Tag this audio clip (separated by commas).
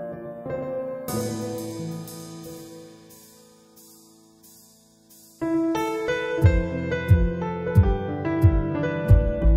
Keyboard (musical), Piano, Musical instrument, Music